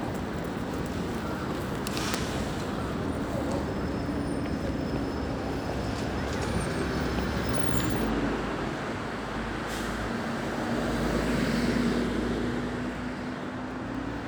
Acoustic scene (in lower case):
street